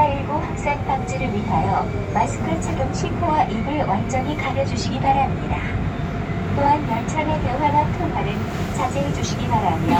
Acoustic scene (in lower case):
subway train